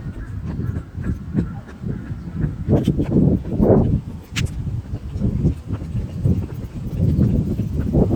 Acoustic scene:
park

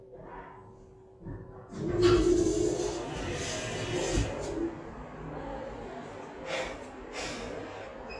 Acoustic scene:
elevator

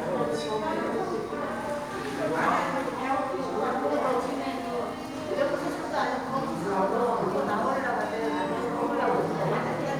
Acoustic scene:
crowded indoor space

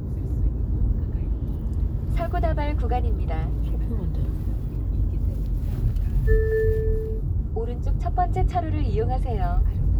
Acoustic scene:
car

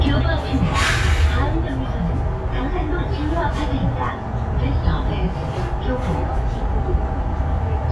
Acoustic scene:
bus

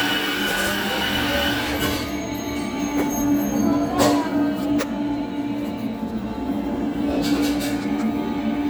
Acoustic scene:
cafe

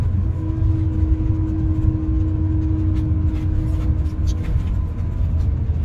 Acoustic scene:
car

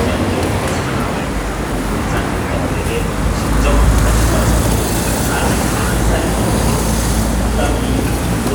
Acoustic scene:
street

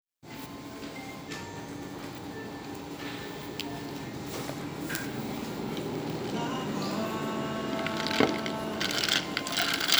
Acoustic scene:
cafe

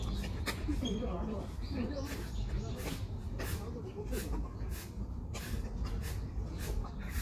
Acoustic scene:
park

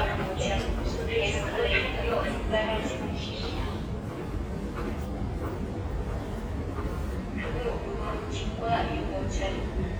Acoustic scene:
subway station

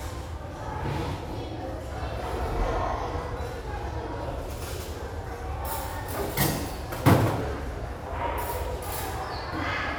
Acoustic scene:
restaurant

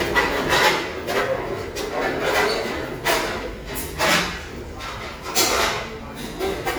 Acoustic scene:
restaurant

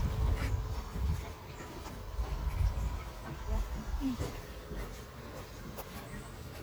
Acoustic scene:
park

